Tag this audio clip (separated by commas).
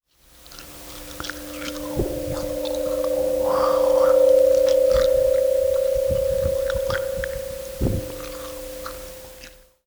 Chewing